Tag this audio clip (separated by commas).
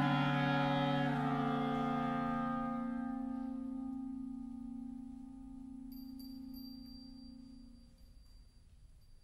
Music, Clarinet